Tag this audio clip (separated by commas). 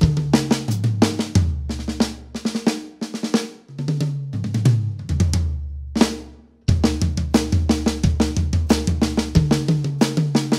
Drum, Music, Drum kit, Musical instrument